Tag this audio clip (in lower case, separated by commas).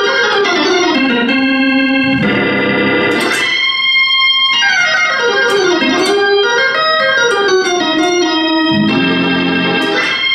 playing hammond organ